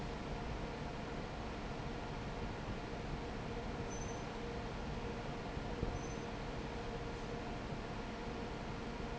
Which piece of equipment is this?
fan